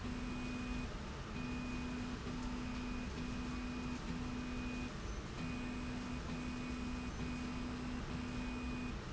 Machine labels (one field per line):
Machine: slide rail